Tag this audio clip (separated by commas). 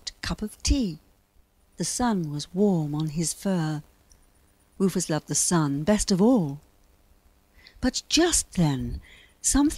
Speech